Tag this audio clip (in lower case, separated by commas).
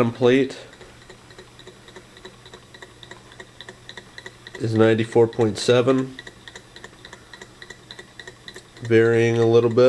engine, speech